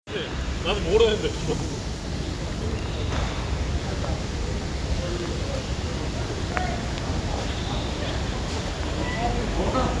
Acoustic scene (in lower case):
residential area